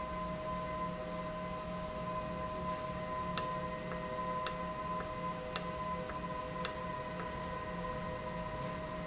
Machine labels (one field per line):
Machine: valve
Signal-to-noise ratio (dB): -6 dB